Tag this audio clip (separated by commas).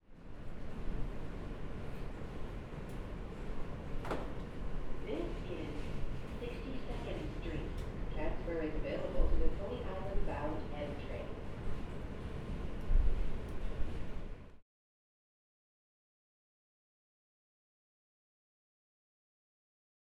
Rail transport, Vehicle, underground